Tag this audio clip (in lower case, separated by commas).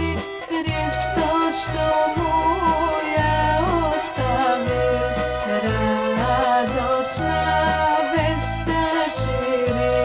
music, rhythm and blues